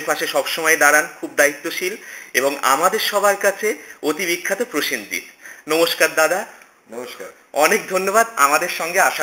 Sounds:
speech

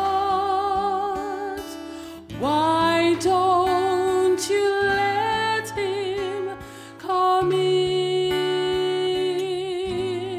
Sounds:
music
tender music

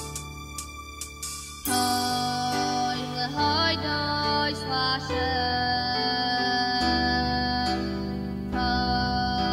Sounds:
music
female singing

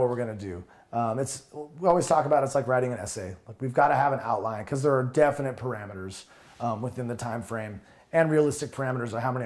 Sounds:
speech

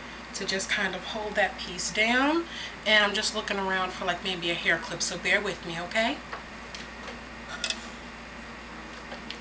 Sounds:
speech

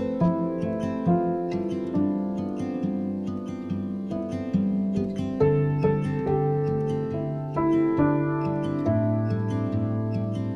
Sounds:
music

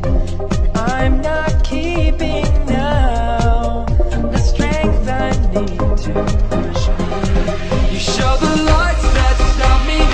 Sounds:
music

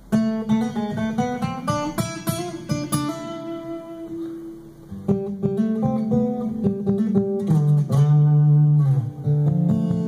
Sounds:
acoustic guitar
strum
plucked string instrument
musical instrument
music
guitar

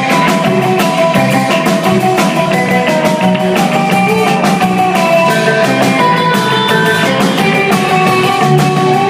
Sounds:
music
musical instrument

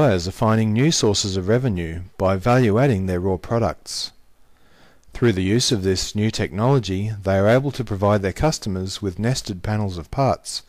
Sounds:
speech

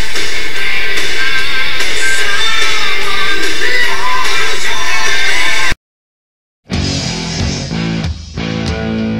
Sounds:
people screaming
music
screaming

